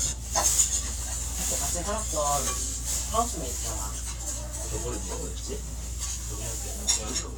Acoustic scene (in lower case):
restaurant